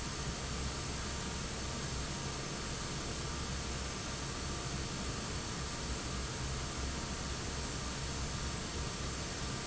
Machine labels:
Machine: fan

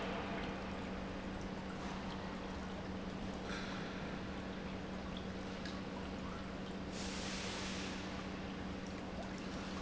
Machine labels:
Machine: pump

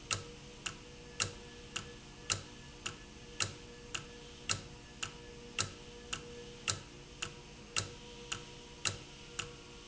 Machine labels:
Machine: valve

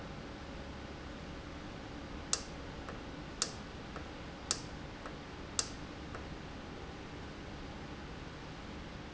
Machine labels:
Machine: valve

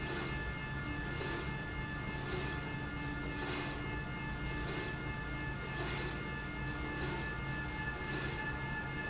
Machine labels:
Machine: slide rail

